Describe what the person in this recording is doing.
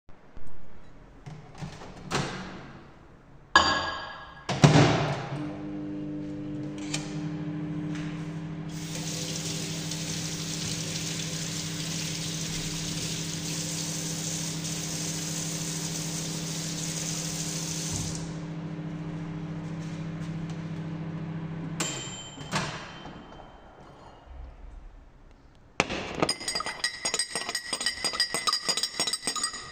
I opened the microwave and put a cup of drink inside it to worm it up then closed the microwave and turn it on , while working I wash a spoon and after the microwave end i opened it and get the cup put it on the table and finally a used the spoon to stir .